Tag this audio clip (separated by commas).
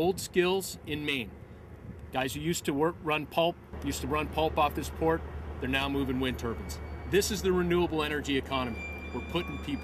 Speech